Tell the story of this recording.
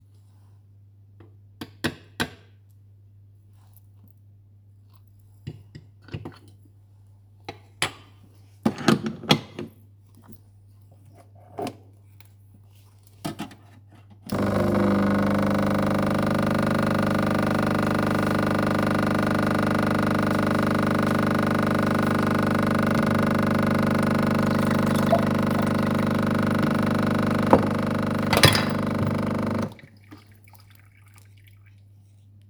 I put a spoonful of coffee into the portafilter and tamped it down to compress it. Then, I attached the portafilter to the coffee machine, tightened it, grabbed a cup, put it under the portafilter and turned the machine on. I poured some milk into my pitcher and then turned the coffee machine off.